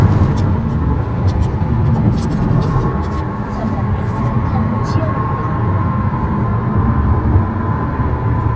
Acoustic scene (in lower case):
car